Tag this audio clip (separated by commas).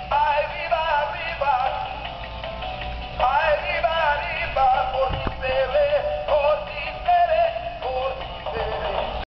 Music, Synthetic singing